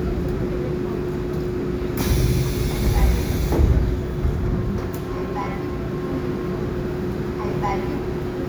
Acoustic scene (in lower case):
subway train